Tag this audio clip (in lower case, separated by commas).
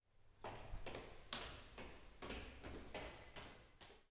footsteps